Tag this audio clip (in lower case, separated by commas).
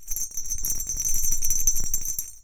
bell